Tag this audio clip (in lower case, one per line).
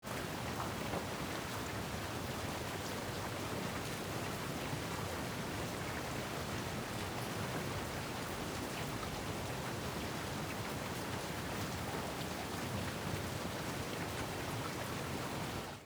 rain
water